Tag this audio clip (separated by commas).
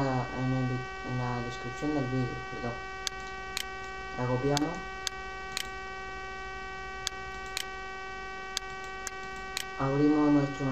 Speech